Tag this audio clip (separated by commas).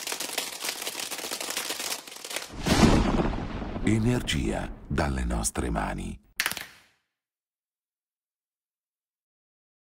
Music, Speech